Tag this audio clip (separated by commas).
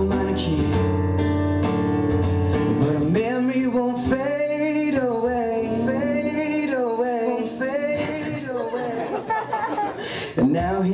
Singing, Guitar, Music